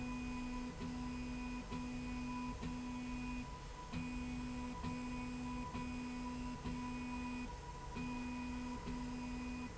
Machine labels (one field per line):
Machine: slide rail